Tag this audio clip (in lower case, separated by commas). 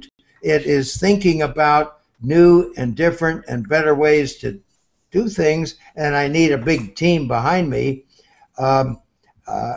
speech